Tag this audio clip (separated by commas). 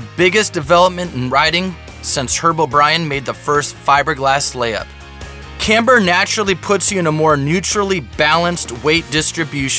Music, Speech